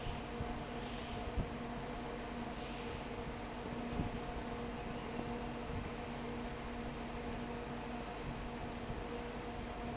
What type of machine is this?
fan